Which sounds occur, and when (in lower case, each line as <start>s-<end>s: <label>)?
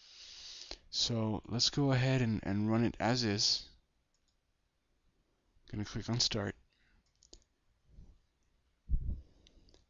0.0s-0.7s: breathing
0.0s-9.8s: background noise
0.6s-0.8s: tick
0.9s-3.6s: man speaking
1.4s-1.5s: clicking
4.1s-4.3s: clicking
5.6s-6.5s: man speaking
6.7s-7.0s: breathing
7.0s-7.4s: clicking
7.8s-8.3s: breathing
8.4s-8.5s: tick
8.9s-9.8s: breathing
9.4s-9.5s: tick
9.7s-9.8s: tick